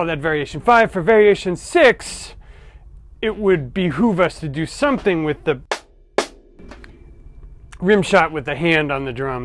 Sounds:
Music, Musical instrument, Speech, Drum, Rimshot

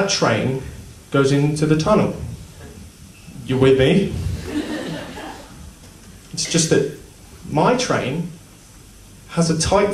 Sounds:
chortle, Speech

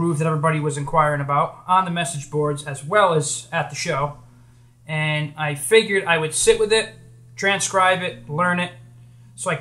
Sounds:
Speech

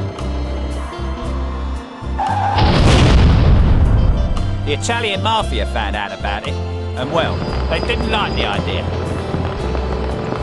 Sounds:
Speech, Music

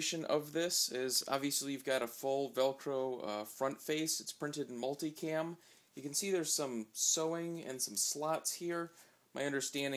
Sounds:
Speech

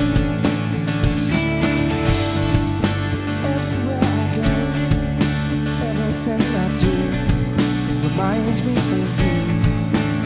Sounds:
Music

